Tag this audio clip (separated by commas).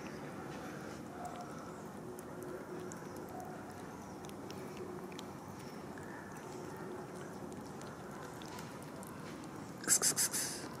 cat hissing